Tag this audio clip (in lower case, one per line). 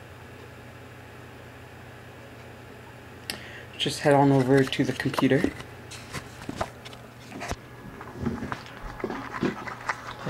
speech